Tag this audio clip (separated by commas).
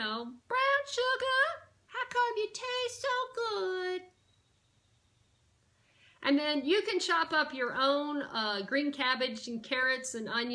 Speech